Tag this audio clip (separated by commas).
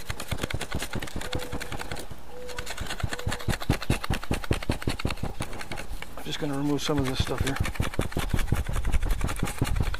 Speech